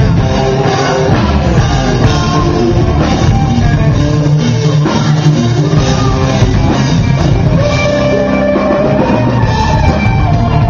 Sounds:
Music, Progressive rock

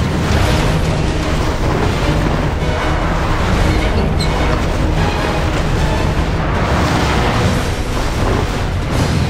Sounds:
Music

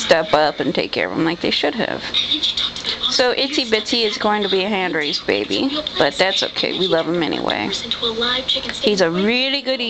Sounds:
Speech

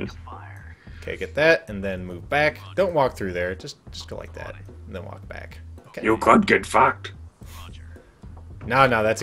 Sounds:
Speech

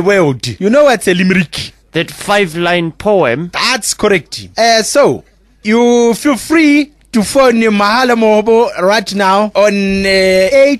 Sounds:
Speech

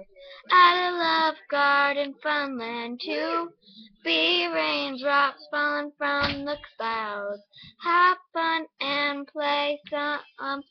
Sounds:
Speech

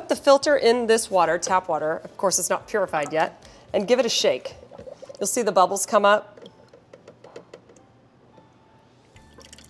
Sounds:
Speech, Music, Gurgling

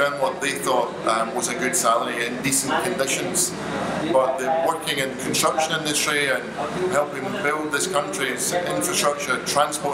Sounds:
Speech

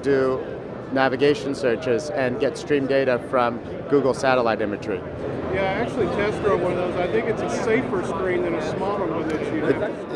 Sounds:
Speech

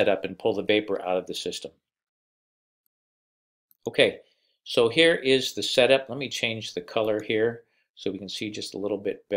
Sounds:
Speech

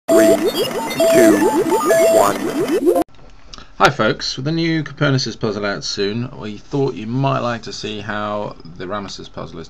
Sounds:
Speech, Music

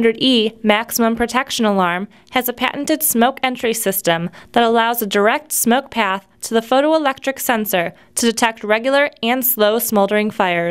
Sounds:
Speech

